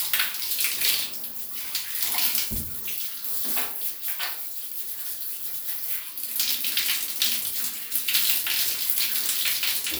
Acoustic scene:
restroom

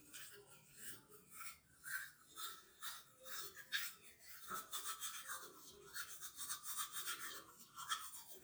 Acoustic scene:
restroom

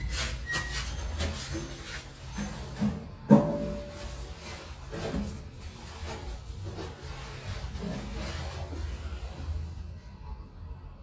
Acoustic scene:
restroom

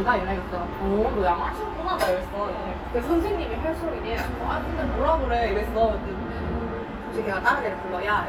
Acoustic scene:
restaurant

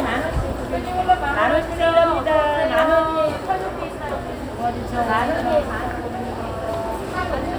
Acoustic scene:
crowded indoor space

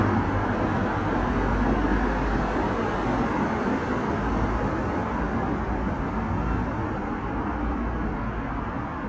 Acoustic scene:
street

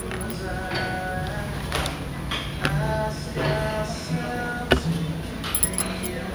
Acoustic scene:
restaurant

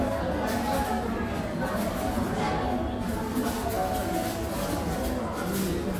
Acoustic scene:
cafe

